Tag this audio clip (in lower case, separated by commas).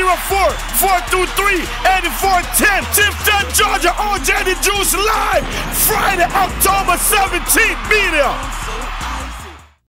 speech, music